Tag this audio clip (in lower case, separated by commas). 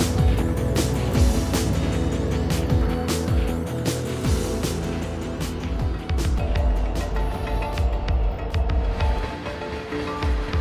music